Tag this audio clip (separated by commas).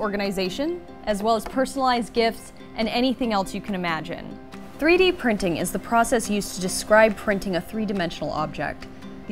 Music, Speech